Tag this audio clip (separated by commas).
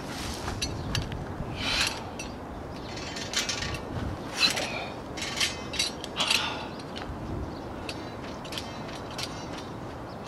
outside, rural or natural